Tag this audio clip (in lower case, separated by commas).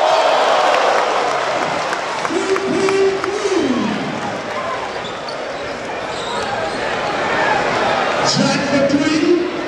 speech